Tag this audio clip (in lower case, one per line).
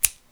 home sounds
scissors